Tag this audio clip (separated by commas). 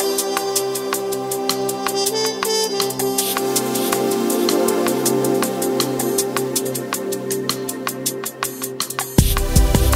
Drum and bass, Music